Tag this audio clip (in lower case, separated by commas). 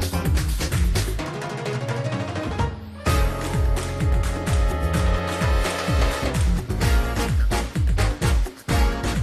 music